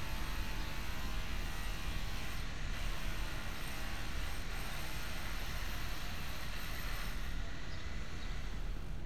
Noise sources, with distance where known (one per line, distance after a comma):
rock drill